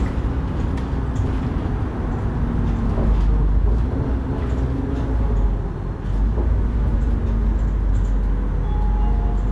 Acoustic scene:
bus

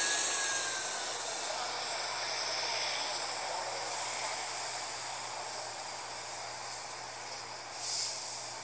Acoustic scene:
street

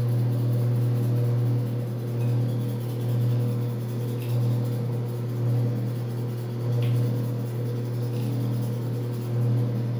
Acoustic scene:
restroom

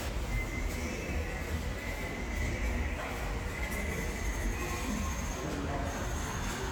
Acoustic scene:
subway station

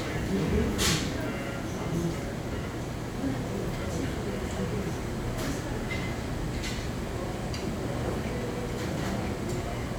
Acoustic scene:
crowded indoor space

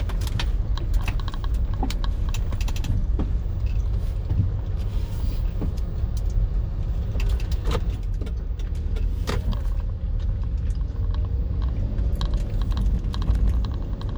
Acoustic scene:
car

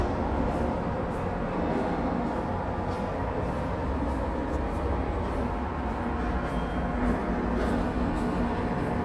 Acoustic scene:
subway station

